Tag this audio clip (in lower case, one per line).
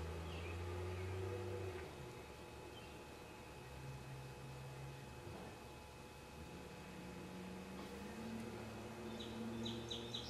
inside a small room